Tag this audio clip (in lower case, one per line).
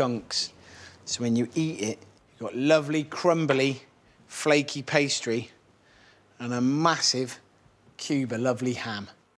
speech